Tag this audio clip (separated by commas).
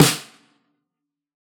Snare drum, Drum, Percussion, Musical instrument, Music